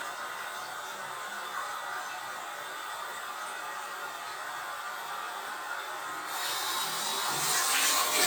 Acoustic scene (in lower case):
restroom